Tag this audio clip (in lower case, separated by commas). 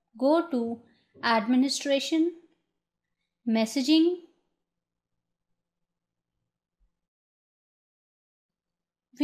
speech